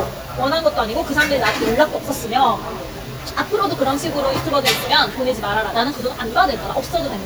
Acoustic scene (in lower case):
restaurant